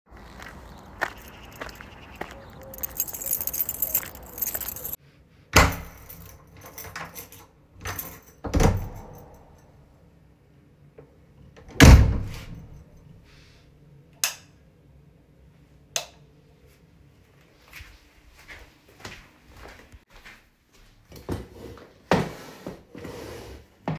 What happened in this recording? Walking to the hall way through the backyard, i take out my bunch of keys, insert and open the door, switch lights on , drag the chair on the floor towards me